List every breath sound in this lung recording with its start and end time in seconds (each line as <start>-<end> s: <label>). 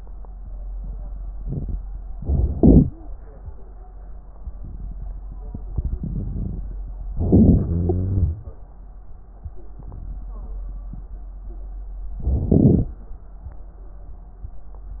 2.15-3.14 s: inhalation
2.81-3.14 s: wheeze
7.16-7.65 s: inhalation
7.63-8.40 s: exhalation
7.63-8.40 s: wheeze
12.20-12.97 s: inhalation